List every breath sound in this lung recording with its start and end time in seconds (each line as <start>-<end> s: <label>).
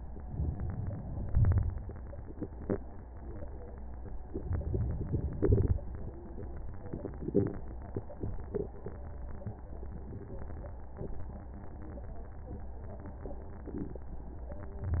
0.22-1.23 s: inhalation
1.22-2.23 s: exhalation
4.37-5.39 s: inhalation
5.41-6.08 s: exhalation
5.41-6.08 s: crackles